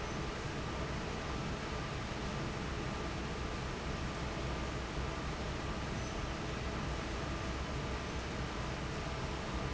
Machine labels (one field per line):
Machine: fan